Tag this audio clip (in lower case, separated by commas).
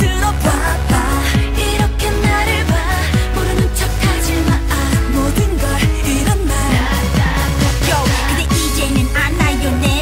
music, exciting music, pop music